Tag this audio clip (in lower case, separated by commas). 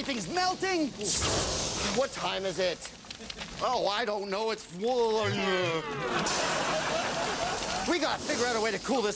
speech